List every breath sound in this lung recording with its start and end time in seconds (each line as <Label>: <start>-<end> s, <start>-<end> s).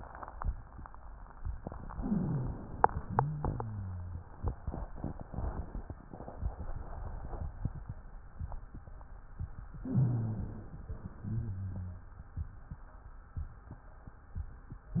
Inhalation: 1.93-2.97 s, 9.76-10.86 s
Exhalation: 3.01-4.28 s, 11.14-12.25 s
Wheeze: 1.89-2.61 s, 3.01-4.28 s, 9.76-10.86 s, 11.14-12.25 s